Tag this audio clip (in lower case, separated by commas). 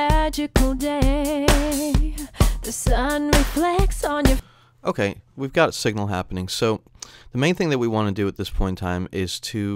music, speech